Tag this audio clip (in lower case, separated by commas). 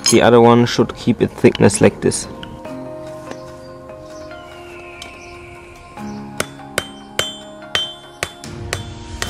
speech, music